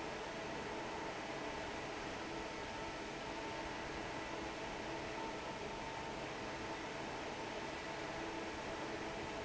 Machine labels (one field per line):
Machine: fan